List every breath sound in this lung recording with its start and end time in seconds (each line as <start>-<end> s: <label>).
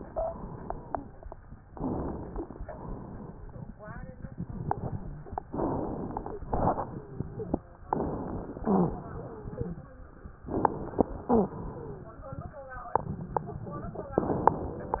0.00-0.38 s: wheeze
1.65-2.54 s: inhalation
2.26-2.49 s: wheeze
2.66-3.70 s: exhalation
5.52-6.42 s: inhalation
6.45-7.55 s: exhalation
6.74-7.87 s: wheeze
7.91-8.62 s: inhalation
8.62-9.75 s: exhalation
8.62-9.75 s: wheeze
10.47-11.25 s: inhalation
11.25-11.61 s: wheeze
11.25-12.52 s: exhalation